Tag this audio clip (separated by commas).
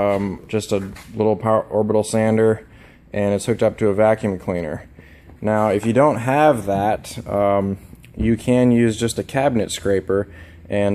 Speech